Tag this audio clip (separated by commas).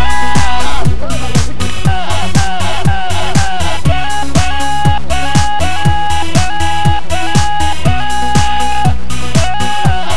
Music